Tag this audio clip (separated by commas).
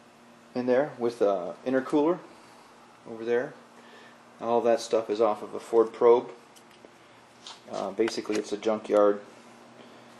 Speech